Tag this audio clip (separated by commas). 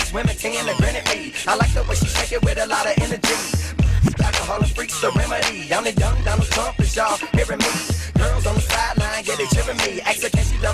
Rapping, Music